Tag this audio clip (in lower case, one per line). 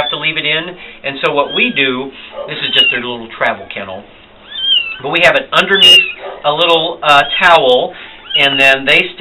speech
cat
animal